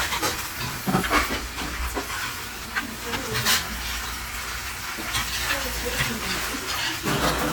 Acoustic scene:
restaurant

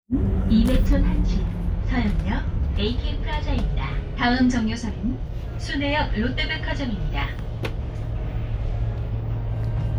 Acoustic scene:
bus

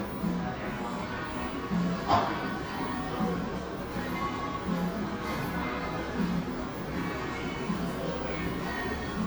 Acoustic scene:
cafe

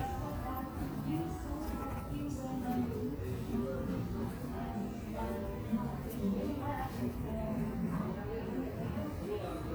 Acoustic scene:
cafe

